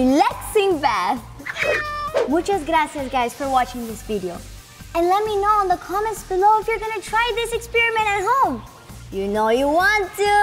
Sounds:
speech
music

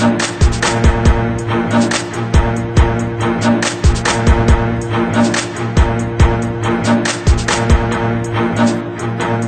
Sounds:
music

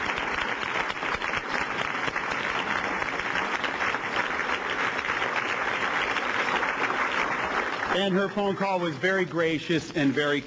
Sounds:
speech
man speaking

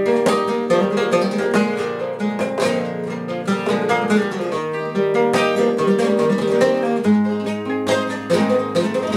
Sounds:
music
plucked string instrument
guitar
musical instrument
strum
acoustic guitar

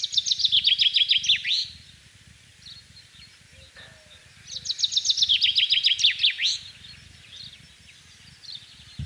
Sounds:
mynah bird singing

